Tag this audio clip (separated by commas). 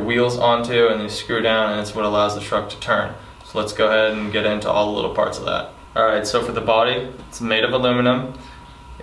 Speech